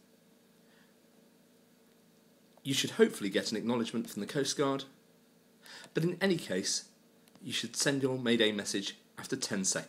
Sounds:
Speech

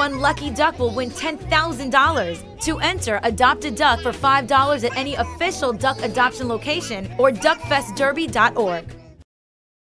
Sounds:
Speech, Music

